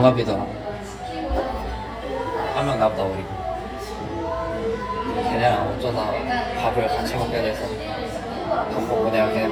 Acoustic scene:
cafe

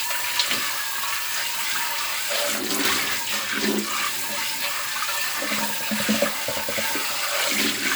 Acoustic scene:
kitchen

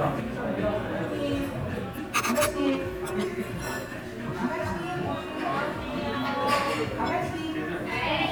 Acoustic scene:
crowded indoor space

